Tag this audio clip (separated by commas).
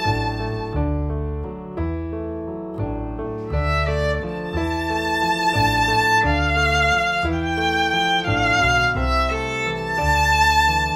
fiddle, Music, Musical instrument